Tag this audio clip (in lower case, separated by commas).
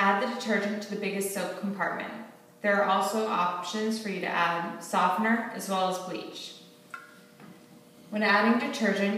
speech